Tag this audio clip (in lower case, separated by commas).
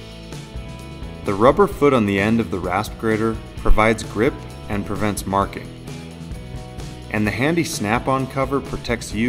music, speech